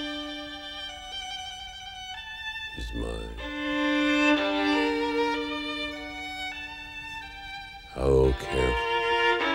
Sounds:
bowed string instrument, speech, music

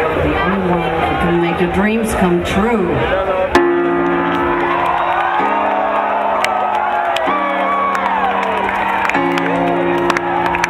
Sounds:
speech, music

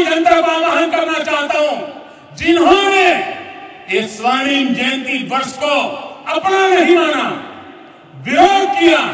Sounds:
man speaking, monologue, speech

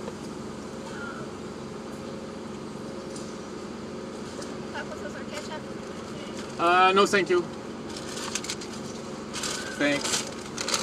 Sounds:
speech, silence

